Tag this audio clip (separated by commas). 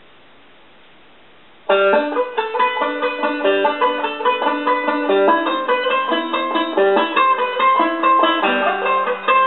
Music, Banjo, Musical instrument, Plucked string instrument, playing banjo